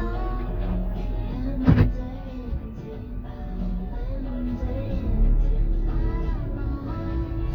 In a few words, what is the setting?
car